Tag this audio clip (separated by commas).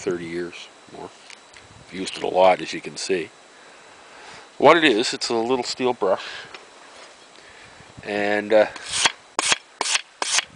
Speech